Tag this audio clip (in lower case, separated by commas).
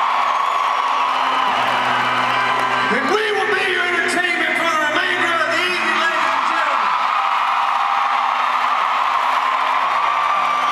speech, music